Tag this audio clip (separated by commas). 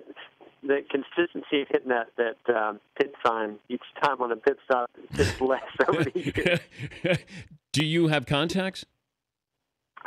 Speech, Speech synthesizer